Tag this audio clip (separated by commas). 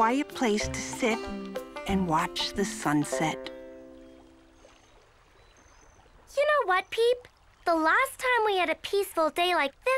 Speech, Music